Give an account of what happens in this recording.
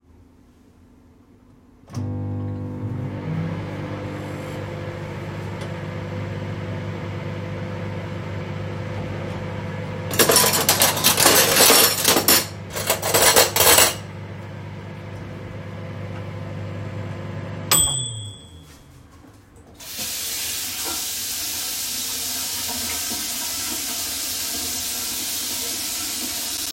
First I turned on the microwave. Then I put cutlery in the drawer and lastly turned on the water